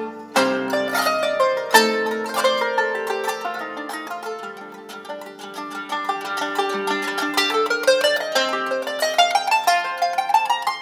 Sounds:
playing zither

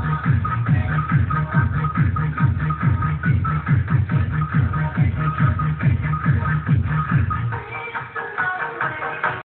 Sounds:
Disco, Music

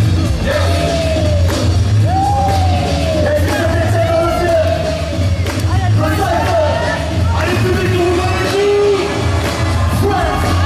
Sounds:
Music, Speech

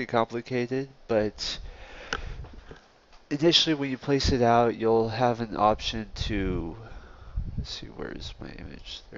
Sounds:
Speech

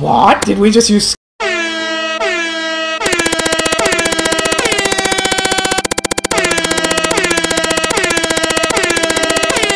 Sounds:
Music, Speech

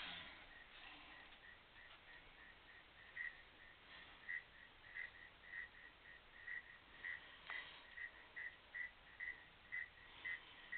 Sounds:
Animal

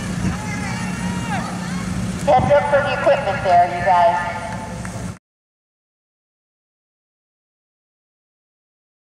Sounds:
Speech

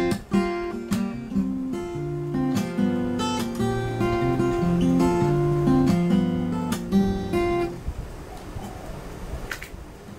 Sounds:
Acoustic guitar, Musical instrument, Guitar, Music, Plucked string instrument

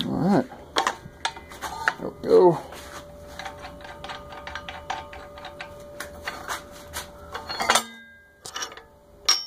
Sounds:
Speech, inside a small room

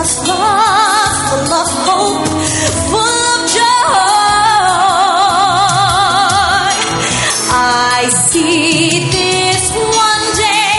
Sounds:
Music, Music of Asia, Singing

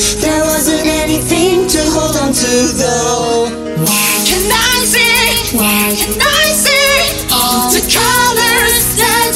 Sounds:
Music

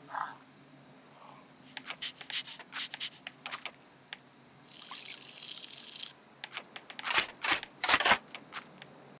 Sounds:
Dog

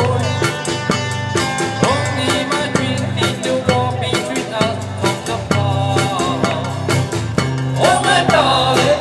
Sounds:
Singing, Music, Speech

